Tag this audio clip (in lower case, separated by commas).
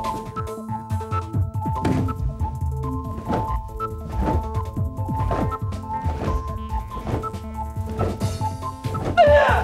music